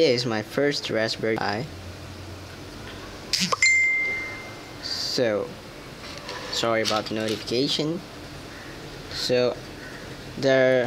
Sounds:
inside a small room
speech

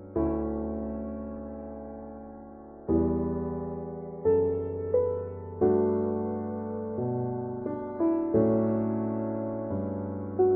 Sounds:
music

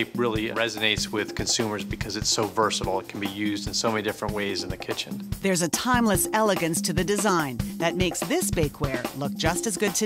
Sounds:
speech
music

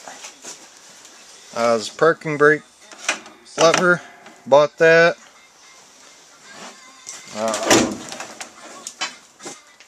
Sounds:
music
speech

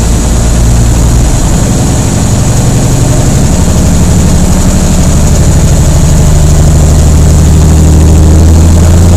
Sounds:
truck
vehicle

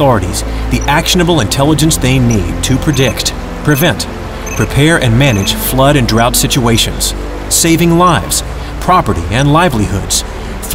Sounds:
music
speech

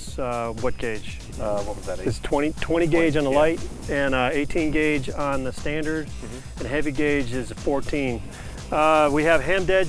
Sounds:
speech
music

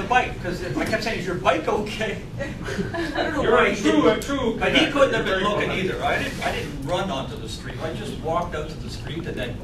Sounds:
speech

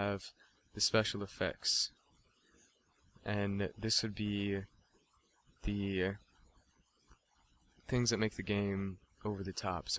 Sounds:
speech

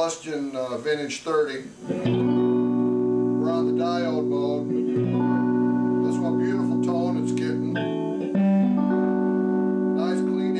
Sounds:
music
musical instrument
speech
inside a small room
plucked string instrument
guitar

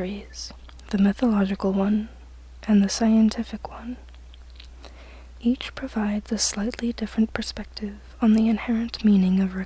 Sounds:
whispering
speech

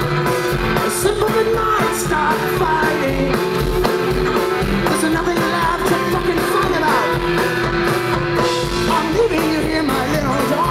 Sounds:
music

